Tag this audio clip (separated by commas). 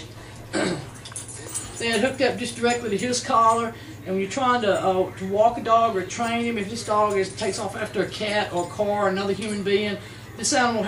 Speech